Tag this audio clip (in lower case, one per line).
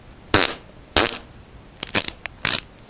fart